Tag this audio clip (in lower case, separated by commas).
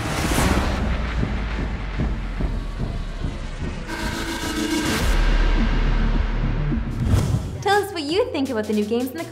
speech, music